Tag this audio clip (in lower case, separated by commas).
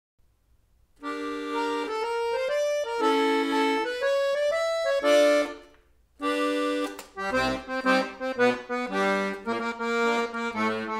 accordion, music